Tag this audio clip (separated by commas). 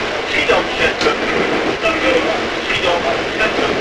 Rail transport, Train, Vehicle